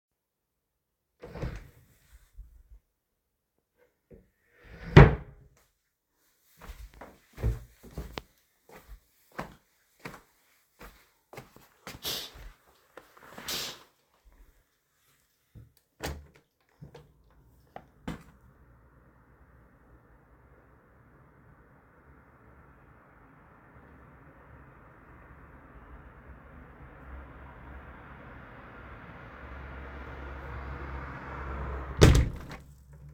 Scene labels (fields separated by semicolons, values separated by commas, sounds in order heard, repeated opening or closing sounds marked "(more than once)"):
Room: bedroom; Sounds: wardrobe or drawer (more than once), footsteps, window (more than once)